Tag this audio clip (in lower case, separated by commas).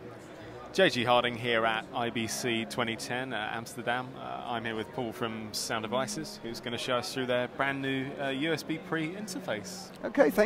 speech, music